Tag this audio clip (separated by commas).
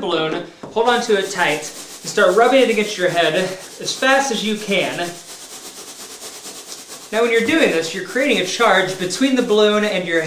Speech